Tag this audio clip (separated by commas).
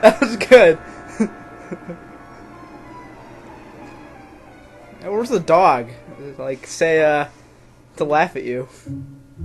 Speech, Music